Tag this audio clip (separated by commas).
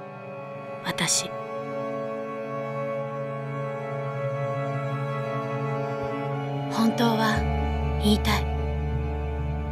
Speech, Music